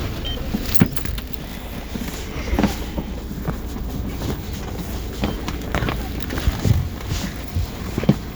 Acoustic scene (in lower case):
bus